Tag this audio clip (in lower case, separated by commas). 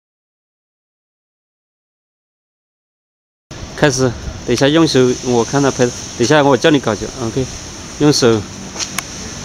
inside a large room or hall, silence, speech